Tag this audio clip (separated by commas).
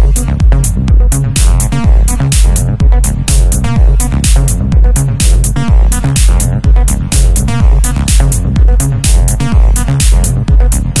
Music, Techno